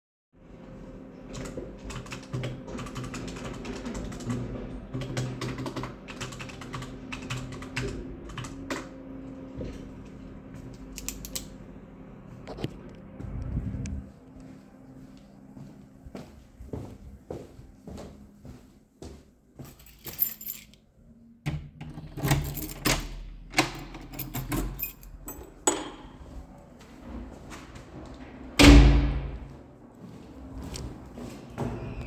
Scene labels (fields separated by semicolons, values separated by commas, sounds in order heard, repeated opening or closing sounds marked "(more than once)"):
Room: living room, hallway; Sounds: keyboard typing, footsteps, keys, door (more than once)